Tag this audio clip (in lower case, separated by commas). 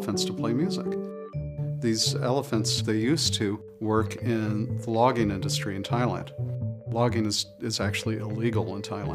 speech, music